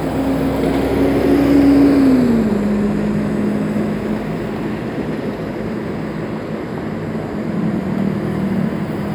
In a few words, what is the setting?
street